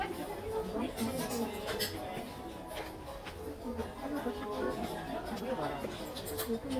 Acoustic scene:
crowded indoor space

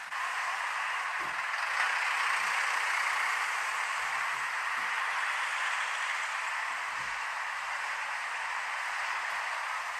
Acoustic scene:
street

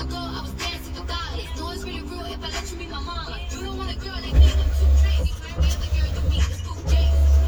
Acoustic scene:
car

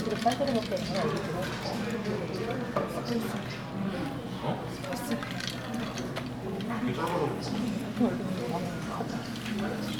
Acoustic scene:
crowded indoor space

